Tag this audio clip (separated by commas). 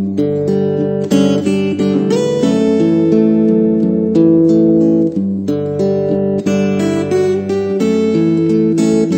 Plucked string instrument, Guitar, Musical instrument, Music, Electronic tuner